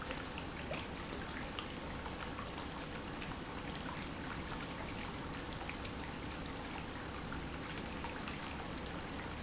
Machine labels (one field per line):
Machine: pump